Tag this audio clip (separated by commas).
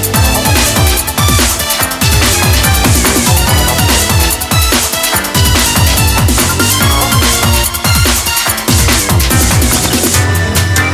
Music